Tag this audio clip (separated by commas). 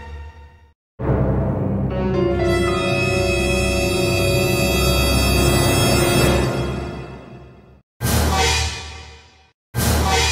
Music, Scary music